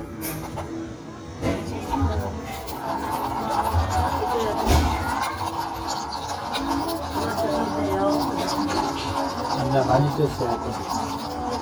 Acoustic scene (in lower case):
cafe